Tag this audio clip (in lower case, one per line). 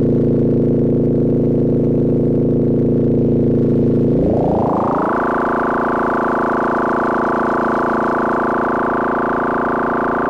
synthesizer
music